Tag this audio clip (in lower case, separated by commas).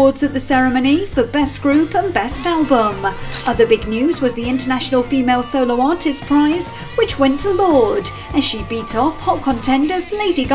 music, speech